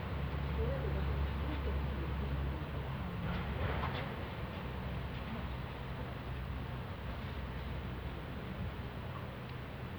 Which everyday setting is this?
residential area